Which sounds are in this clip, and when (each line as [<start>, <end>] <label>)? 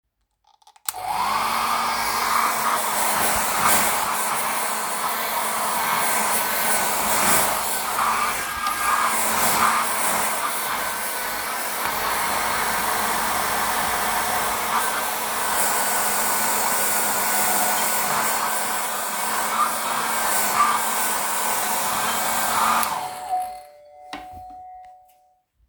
[0.86, 23.20] vacuum cleaner
[17.31, 18.11] bell ringing
[20.27, 25.39] bell ringing